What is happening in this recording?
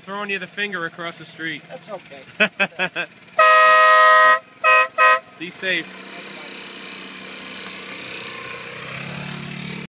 A man is talking while a horn is honking